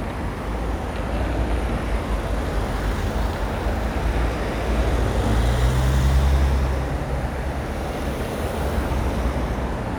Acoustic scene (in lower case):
street